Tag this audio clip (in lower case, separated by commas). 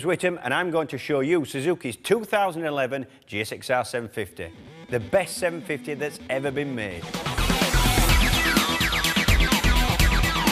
speech, music